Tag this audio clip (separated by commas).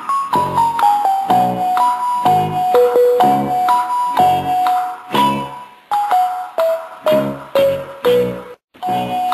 Music